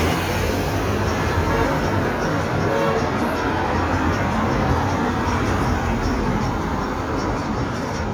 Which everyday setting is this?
street